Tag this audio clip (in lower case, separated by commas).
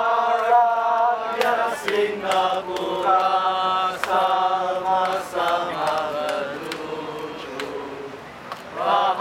choir, male singing